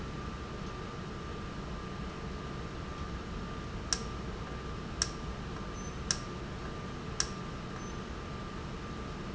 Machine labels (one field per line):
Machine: valve